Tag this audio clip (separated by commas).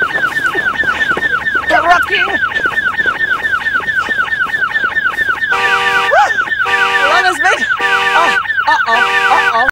Speech